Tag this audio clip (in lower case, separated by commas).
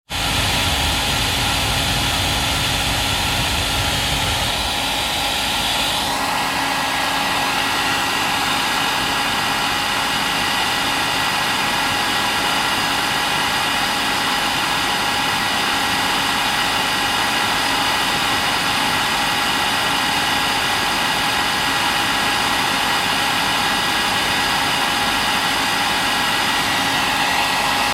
home sounds